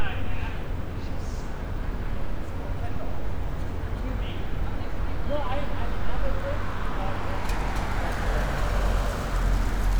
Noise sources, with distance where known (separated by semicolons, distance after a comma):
medium-sounding engine, near